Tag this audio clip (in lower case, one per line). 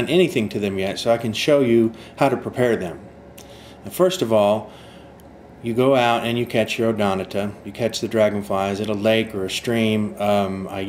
speech